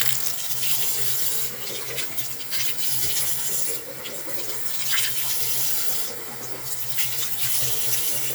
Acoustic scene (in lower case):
restroom